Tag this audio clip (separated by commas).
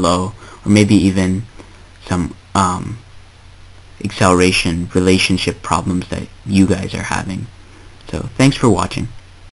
Speech, Speech synthesizer